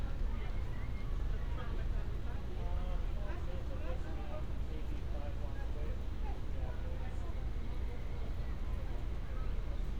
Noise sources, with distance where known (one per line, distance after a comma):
person or small group talking